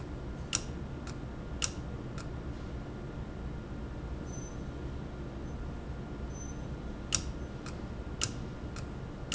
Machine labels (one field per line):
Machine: valve